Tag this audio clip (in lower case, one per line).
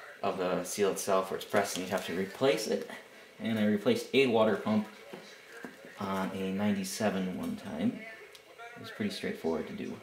speech